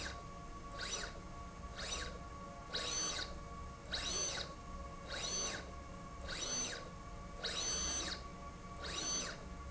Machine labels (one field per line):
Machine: slide rail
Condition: abnormal